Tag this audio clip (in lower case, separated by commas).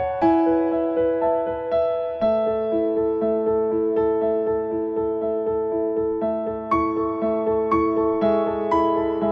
music